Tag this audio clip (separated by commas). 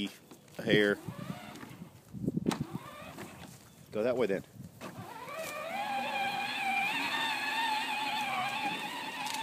Speech